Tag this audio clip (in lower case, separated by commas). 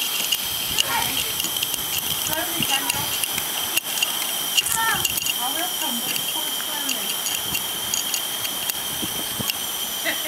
speech